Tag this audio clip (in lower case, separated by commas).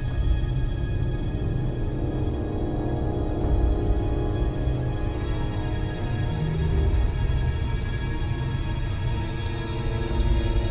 music